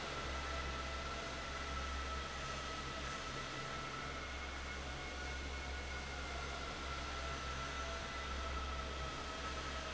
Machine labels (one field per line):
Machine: fan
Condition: normal